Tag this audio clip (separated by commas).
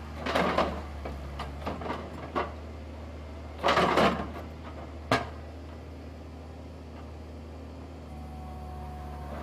Vehicle